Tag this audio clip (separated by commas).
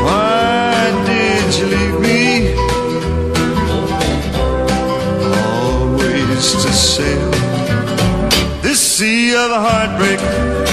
Country